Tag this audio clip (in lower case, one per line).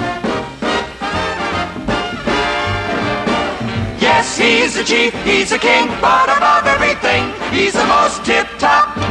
music